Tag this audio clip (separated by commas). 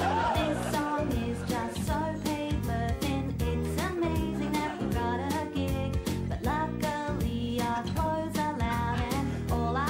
Music, Singing